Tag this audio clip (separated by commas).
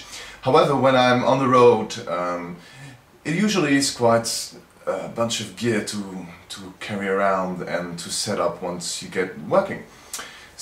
Speech